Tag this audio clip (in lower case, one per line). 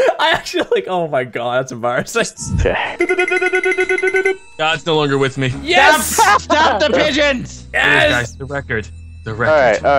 speech